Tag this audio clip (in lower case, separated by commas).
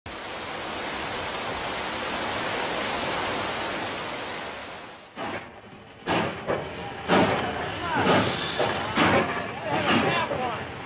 rail transport, train, speech, vehicle, railroad car